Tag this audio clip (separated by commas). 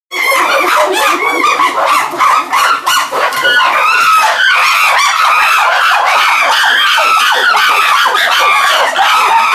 chimpanzee pant-hooting